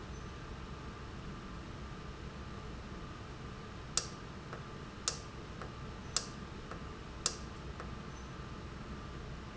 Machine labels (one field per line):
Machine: valve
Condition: normal